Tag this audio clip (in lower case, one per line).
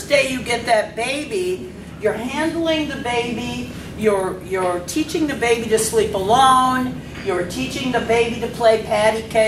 speech